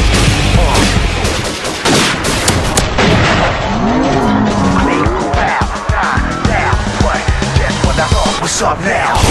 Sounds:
Music

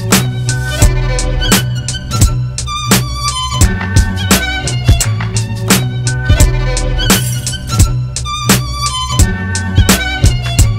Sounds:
Musical instrument, Music, fiddle

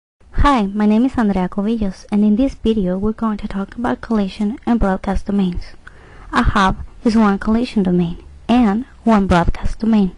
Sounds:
Speech

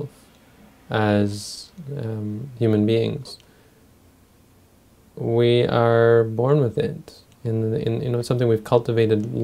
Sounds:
Speech

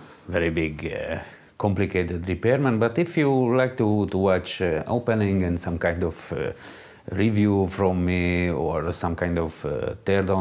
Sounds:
Speech

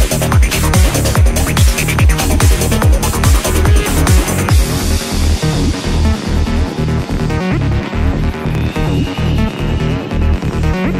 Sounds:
Trance music, Music

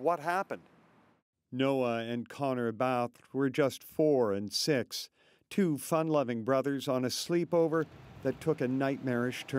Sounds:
Speech

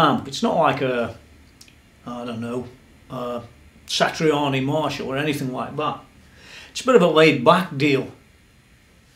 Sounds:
Speech

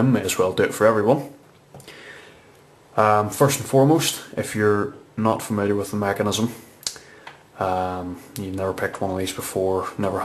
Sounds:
Speech

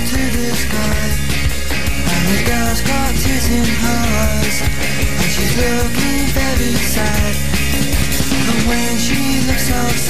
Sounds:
Music

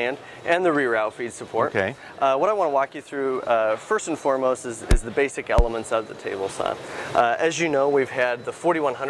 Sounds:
Speech

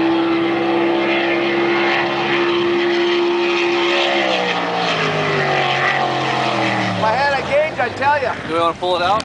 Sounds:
Speech

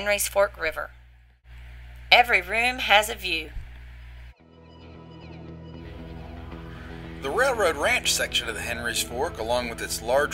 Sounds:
Music, Speech

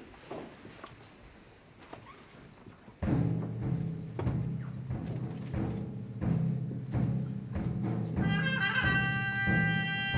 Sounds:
Classical music, Musical instrument, Music, Timpani, Brass instrument, Orchestra

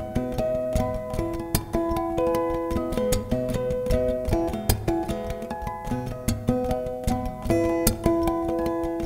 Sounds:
Music

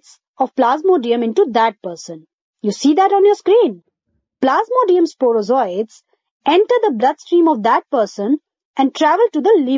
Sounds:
Speech

